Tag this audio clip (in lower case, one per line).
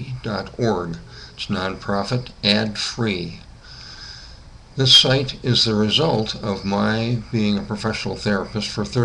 speech